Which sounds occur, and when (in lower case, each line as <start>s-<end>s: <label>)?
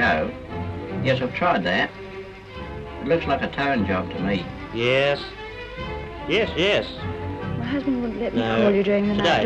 0.0s-0.3s: male speech
0.0s-9.4s: background noise
1.0s-1.9s: male speech
3.1s-4.4s: male speech
4.6s-5.3s: male speech
6.3s-7.0s: male speech
7.4s-9.4s: woman speaking
8.3s-9.4s: male speech